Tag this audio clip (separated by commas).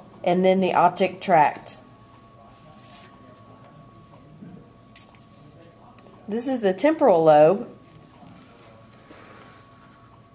Speech